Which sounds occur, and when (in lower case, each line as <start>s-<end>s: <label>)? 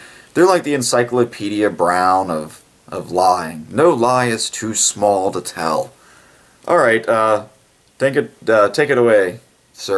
0.0s-0.3s: breathing
0.0s-9.9s: background noise
0.3s-2.6s: man speaking
2.8s-5.9s: man speaking
6.0s-6.6s: breathing
6.6s-7.4s: man speaking
8.0s-8.3s: man speaking
8.4s-9.4s: man speaking
9.7s-9.9s: man speaking